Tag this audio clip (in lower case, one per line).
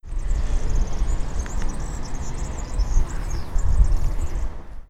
bird
animal
wild animals